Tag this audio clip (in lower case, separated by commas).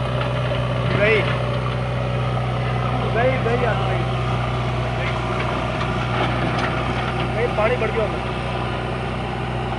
tractor digging